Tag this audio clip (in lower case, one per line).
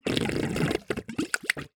water
gurgling